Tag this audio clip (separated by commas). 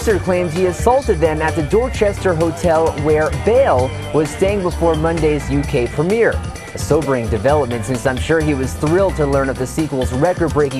Speech, Music